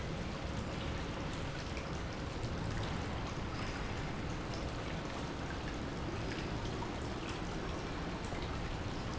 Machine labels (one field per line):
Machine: pump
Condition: normal